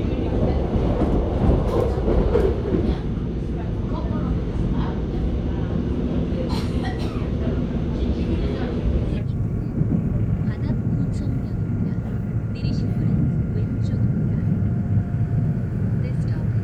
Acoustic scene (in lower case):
subway train